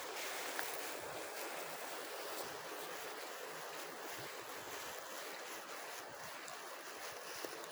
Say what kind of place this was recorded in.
residential area